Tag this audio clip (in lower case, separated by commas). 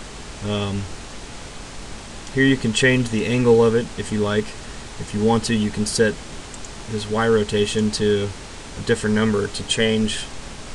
speech, pink noise